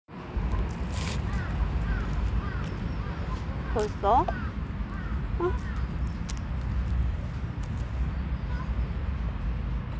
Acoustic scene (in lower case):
residential area